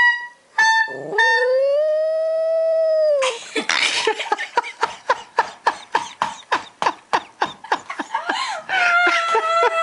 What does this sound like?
A dog howling like a wolf as people laugh away